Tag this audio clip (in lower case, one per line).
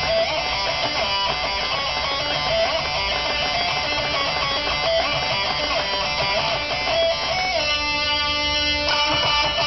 guitar
musical instrument
electric guitar
music